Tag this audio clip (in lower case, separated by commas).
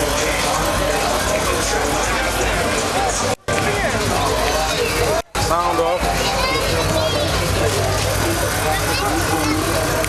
car passing by, speech